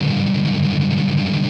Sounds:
Plucked string instrument, Music, Strum, Guitar, Musical instrument

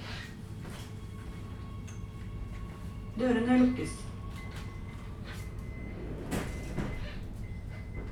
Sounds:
metro, Vehicle, Rail transport

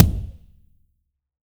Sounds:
Musical instrument, Bass drum, Drum, Music, Percussion

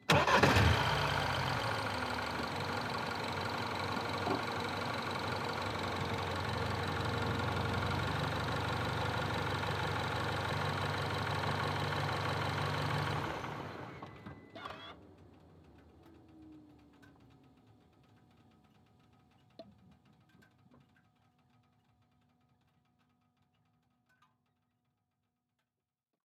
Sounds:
Idling, Engine starting, Engine

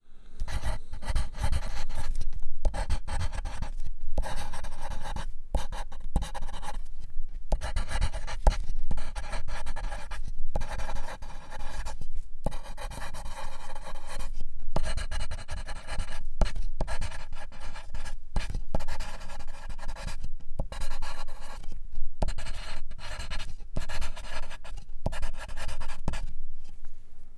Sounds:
Domestic sounds, Writing

